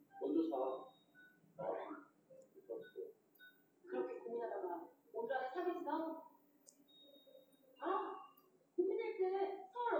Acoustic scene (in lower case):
subway station